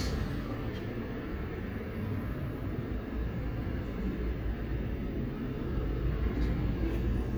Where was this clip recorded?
on a street